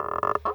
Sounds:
Squeak

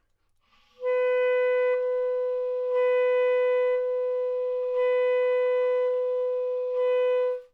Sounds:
Music, Musical instrument, woodwind instrument

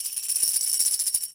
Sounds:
Music, Percussion, Musical instrument, Tambourine

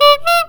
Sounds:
Alarm, Car, Vehicle, honking, Motor vehicle (road)

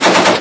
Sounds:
Explosion, gunfire

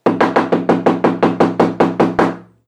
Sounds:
home sounds, Knock, Wood, Door

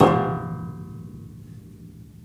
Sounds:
Keyboard (musical), Piano, Musical instrument, Music

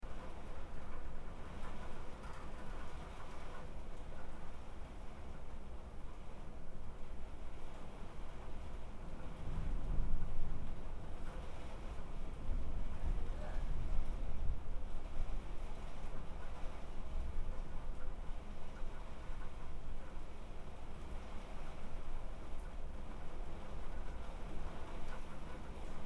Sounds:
Water, Rain

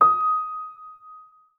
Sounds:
Piano, Music, Musical instrument, Keyboard (musical)

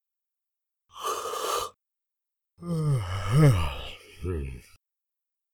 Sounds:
Human voice

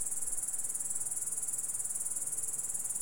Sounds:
Cricket, Animal, Wild animals, Insect

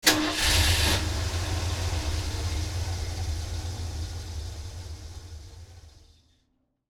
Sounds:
Car, Engine starting, Vehicle, Idling, Motor vehicle (road), Engine

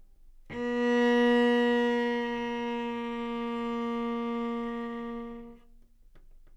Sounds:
Music, Bowed string instrument, Musical instrument

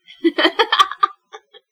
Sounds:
Human voice, Laughter

